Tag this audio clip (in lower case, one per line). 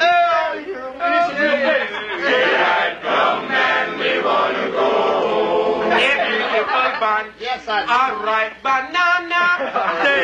speech